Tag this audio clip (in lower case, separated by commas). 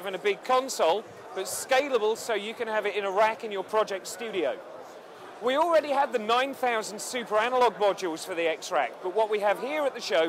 speech